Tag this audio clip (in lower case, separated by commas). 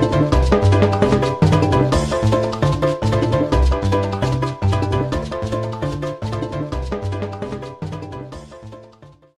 theme music, music